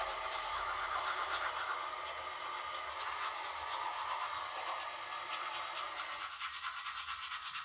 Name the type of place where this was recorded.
restroom